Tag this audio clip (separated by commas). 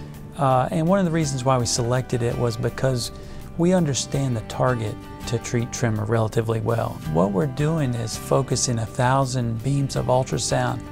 Music, Speech